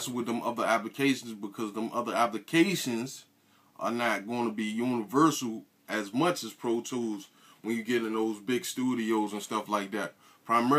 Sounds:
speech

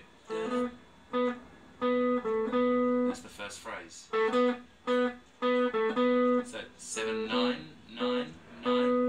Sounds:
plucked string instrument
speech
guitar
tapping (guitar technique)
music

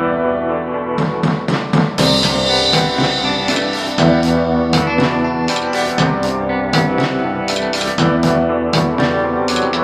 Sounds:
soundtrack music
music

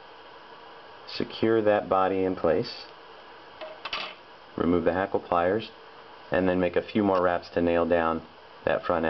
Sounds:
speech

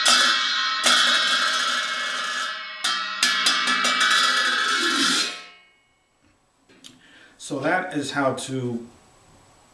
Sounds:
speech
inside a small room
musical instrument

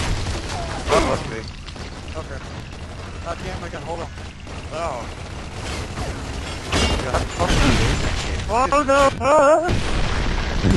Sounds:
speech

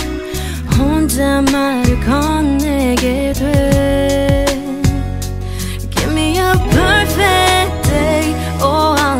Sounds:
music

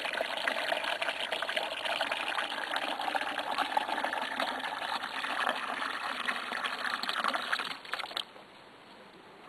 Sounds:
water

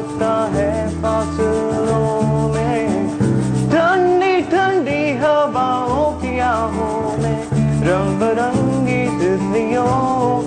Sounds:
guitar
blues
musical instrument
music

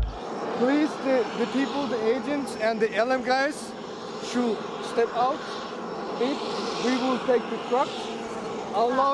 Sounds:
airplane
speech
vehicle
outside, urban or man-made

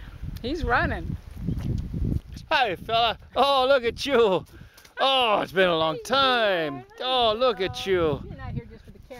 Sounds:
donkey

